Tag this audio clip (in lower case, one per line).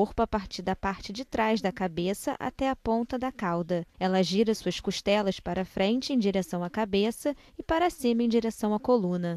speech